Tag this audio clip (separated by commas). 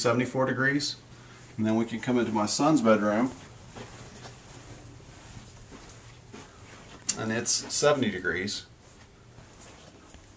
Speech